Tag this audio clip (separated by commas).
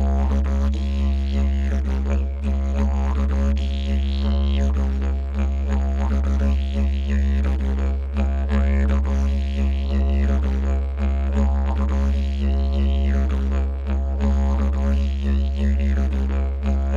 Music, Musical instrument